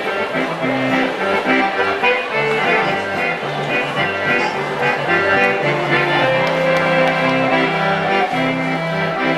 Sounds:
Accordion, Music

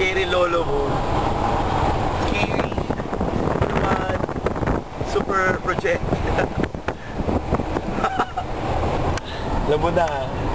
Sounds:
Speech, outside, urban or man-made

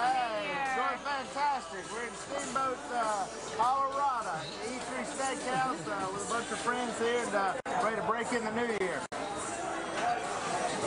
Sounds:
Speech, Music

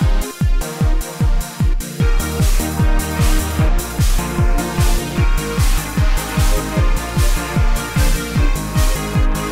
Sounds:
Music

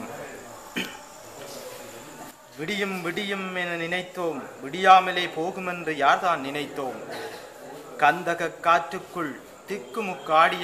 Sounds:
man speaking, Narration, Speech

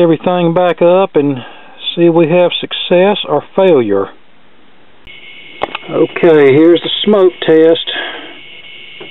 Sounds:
Speech

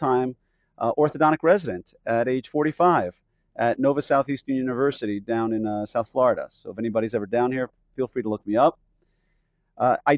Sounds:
Speech

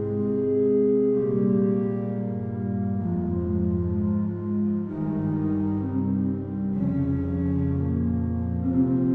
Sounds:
Organ, Music

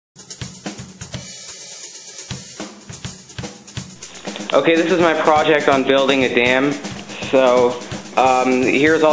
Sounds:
Bass drum, Music, Hi-hat, Drum kit, Speech

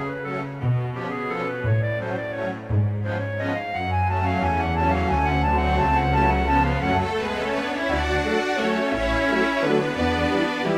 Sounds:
Music

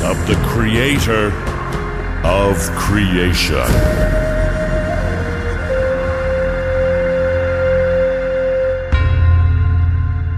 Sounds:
Speech, Music

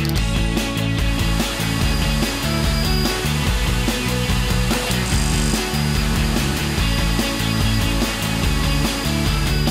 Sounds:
Music

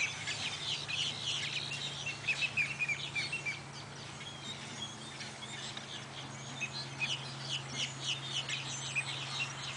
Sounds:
tweet, Bird

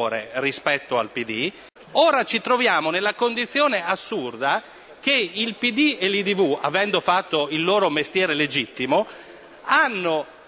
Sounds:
Speech

